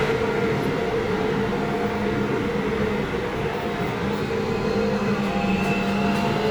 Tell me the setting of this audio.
subway train